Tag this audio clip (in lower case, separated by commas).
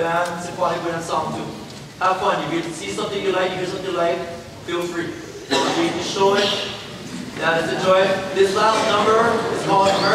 speech